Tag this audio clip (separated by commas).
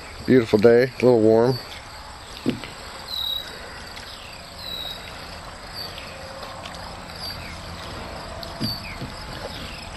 Speech